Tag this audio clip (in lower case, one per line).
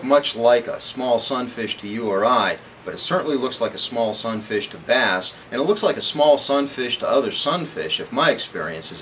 speech